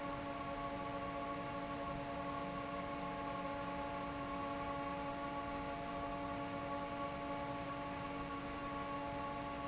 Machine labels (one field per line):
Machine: fan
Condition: normal